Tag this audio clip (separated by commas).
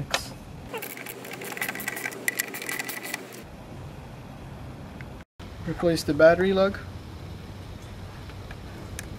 Speech